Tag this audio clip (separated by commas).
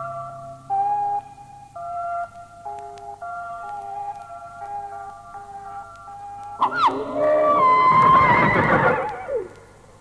whinny, Horse